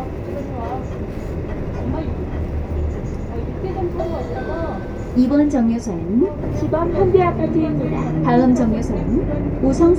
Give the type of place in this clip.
bus